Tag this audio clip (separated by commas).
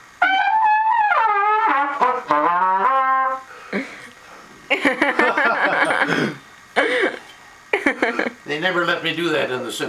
Brass instrument, Music, Speech, Trumpet, Musical instrument